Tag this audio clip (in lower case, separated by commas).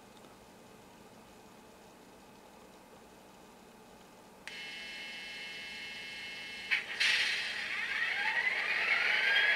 sound effect